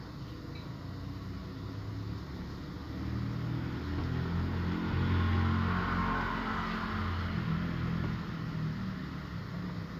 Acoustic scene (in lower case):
street